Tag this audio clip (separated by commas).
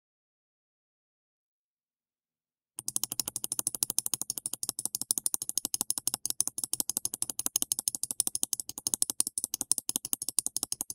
mouse clicking